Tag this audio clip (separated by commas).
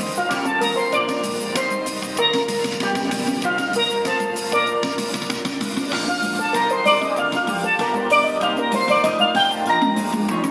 Steelpan, Music